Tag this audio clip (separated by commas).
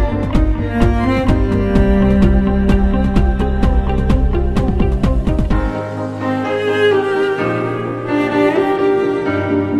Orchestra, String section